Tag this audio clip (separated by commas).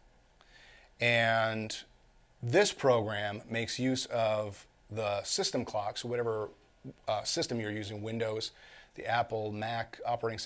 Speech